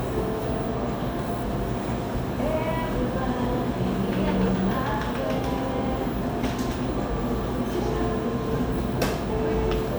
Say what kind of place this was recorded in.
cafe